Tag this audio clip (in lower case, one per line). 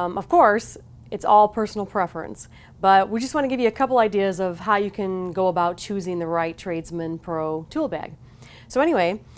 speech